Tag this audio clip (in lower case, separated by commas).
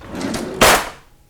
domestic sounds, drawer open or close